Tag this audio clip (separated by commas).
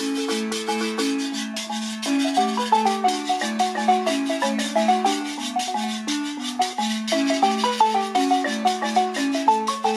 playing guiro